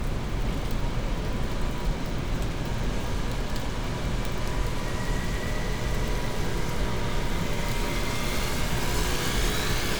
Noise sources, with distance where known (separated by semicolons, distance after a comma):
engine of unclear size, near